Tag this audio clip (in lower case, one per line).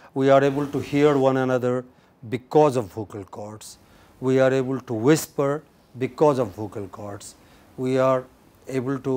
speech